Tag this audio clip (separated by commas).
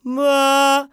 Male singing, Singing, Human voice